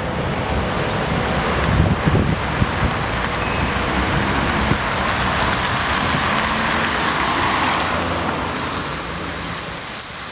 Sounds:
Traffic noise, Car, Vehicle

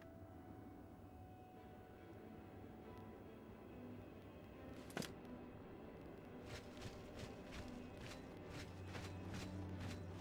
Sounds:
Music

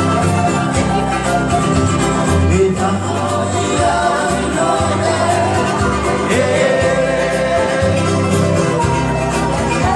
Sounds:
Bluegrass, Crowd, Music

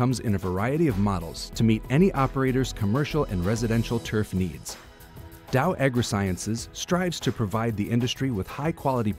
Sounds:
Music, Speech

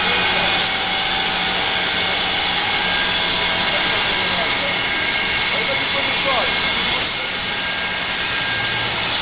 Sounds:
Speech

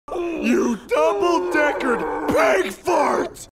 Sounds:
Speech

